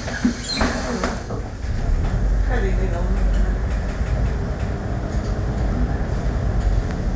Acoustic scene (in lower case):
bus